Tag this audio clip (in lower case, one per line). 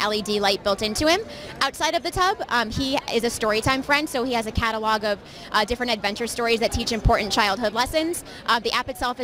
speech